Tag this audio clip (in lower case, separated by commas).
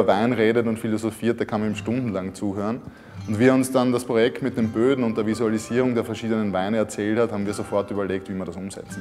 speech, music